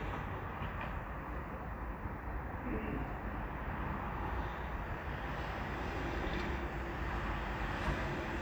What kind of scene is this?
residential area